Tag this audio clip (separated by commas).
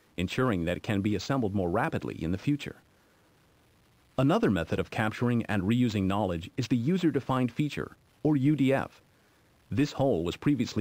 Speech